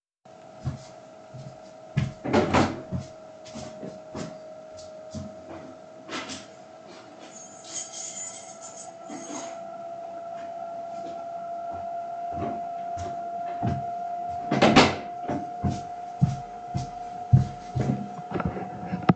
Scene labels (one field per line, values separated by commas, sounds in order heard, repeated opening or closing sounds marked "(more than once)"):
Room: living room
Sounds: footsteps, door (more than once), keys